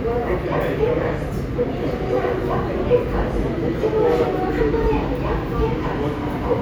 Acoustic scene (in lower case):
subway station